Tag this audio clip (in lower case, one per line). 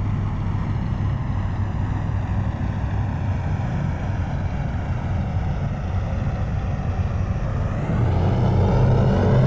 aircraft
airplane
vehicle